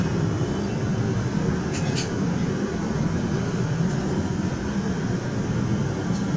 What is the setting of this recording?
subway train